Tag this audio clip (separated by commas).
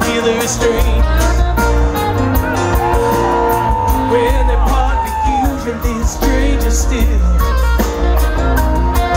Music, Exciting music